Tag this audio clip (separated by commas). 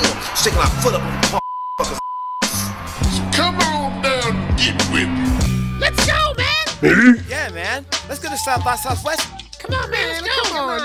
Speech, Music